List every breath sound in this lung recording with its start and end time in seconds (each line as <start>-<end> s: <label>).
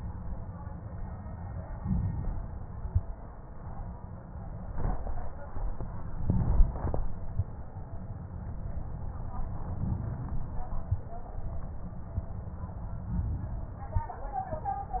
1.69-2.79 s: inhalation
6.19-7.46 s: inhalation
9.75-10.85 s: inhalation
13.09-14.19 s: inhalation